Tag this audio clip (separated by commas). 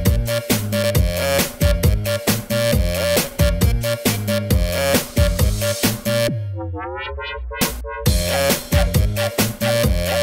Music